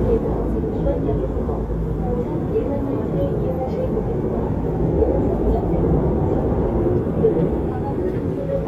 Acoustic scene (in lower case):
subway train